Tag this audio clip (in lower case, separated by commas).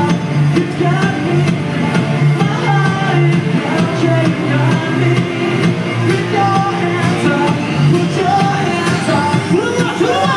music, singing, inside a large room or hall